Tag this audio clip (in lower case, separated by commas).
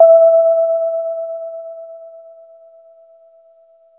keyboard (musical), musical instrument, piano, music